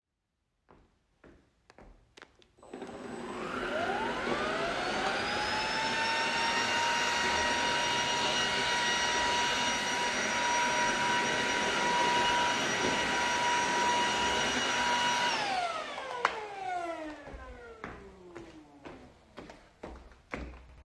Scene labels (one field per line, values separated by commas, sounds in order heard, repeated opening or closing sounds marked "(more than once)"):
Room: living room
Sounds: footsteps, vacuum cleaner